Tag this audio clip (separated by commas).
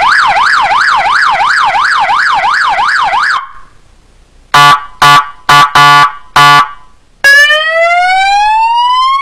Ambulance (siren), Siren